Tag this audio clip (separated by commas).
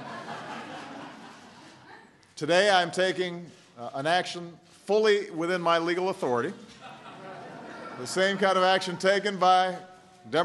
Speech